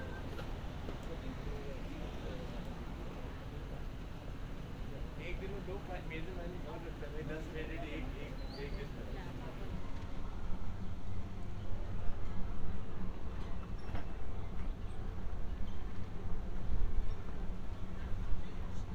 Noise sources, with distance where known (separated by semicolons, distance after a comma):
person or small group talking